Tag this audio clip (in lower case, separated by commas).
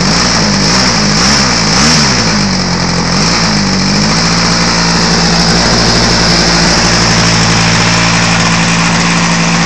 vehicle